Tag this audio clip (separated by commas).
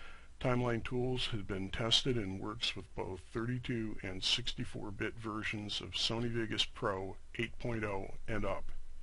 Speech